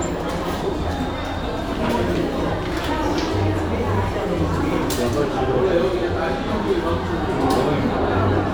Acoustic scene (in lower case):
cafe